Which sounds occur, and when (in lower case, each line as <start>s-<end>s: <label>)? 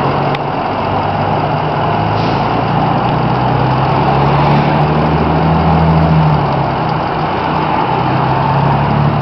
0.0s-9.2s: bus
0.3s-0.4s: tick
2.1s-2.5s: air brake
6.8s-6.9s: tick